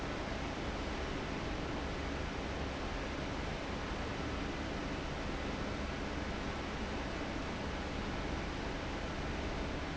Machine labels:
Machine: fan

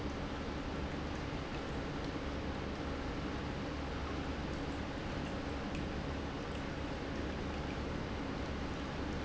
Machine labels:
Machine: pump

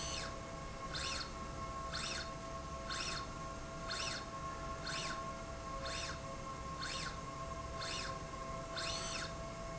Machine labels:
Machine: slide rail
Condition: normal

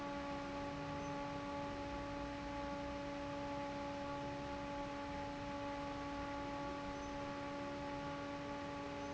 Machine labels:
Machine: fan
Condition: normal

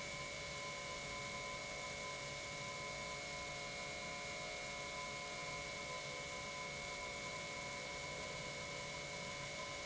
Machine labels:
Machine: pump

